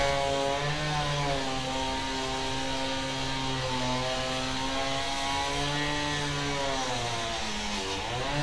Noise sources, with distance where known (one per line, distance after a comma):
chainsaw